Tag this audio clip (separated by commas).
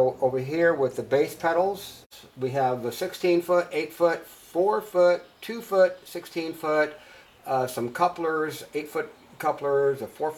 Speech